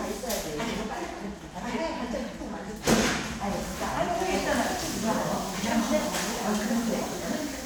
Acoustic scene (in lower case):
crowded indoor space